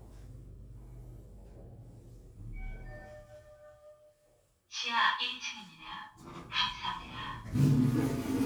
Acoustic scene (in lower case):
elevator